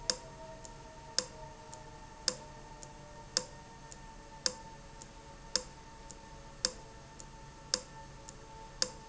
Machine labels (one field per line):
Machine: valve